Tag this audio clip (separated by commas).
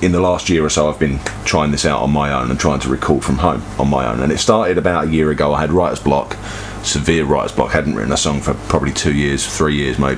Speech